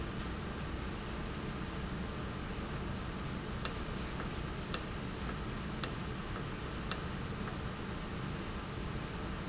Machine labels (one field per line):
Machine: valve